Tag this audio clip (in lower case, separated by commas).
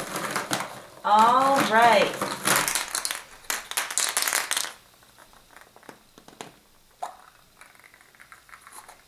speech